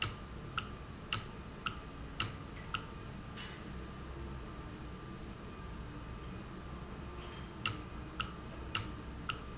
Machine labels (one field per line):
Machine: valve